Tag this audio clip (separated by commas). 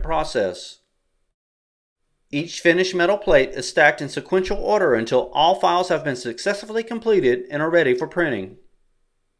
Speech